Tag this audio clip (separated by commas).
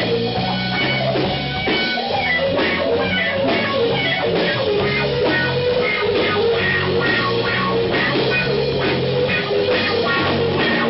Drum, Guitar, Blues, Musical instrument, Music